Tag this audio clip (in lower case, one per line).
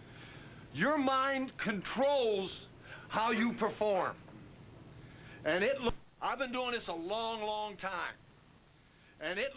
monologue
man speaking
speech